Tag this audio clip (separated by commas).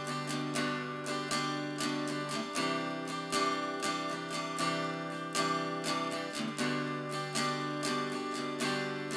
Plucked string instrument, Guitar, Music, Musical instrument, Acoustic guitar